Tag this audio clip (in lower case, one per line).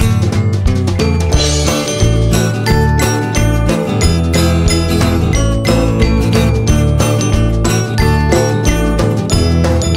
music